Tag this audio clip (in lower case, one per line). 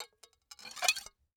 home sounds
dishes, pots and pans